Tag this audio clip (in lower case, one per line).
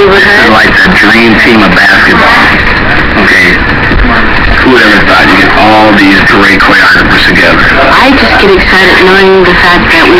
speech